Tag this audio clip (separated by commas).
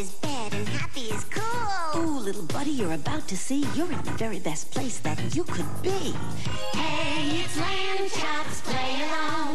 Music